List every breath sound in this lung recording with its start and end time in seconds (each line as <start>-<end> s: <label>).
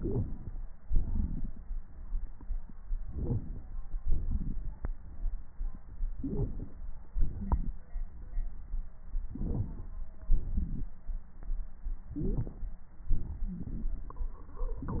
0.83-1.75 s: exhalation
2.98-3.76 s: inhalation
4.04-5.46 s: exhalation
4.05-5.46 s: crackles
6.15-6.79 s: inhalation
6.20-6.47 s: wheeze
7.03-8.11 s: exhalation
7.03-8.11 s: wheeze
9.34-9.98 s: inhalation
10.26-11.03 s: exhalation
12.12-12.77 s: inhalation
12.12-12.77 s: crackles
12.14-12.36 s: wheeze